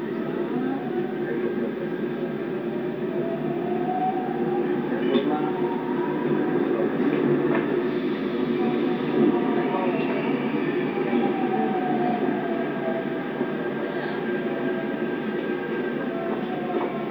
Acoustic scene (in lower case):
subway train